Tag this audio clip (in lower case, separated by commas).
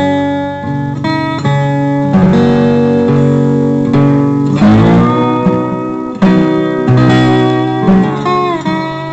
guitar, music, plucked string instrument, musical instrument, acoustic guitar